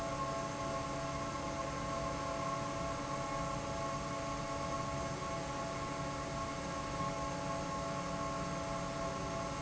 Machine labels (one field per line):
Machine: fan